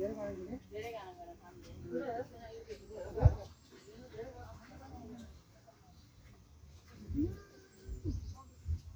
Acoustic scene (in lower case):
park